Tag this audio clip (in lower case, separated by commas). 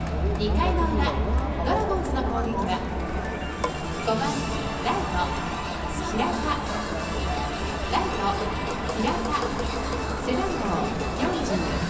crowd, human group actions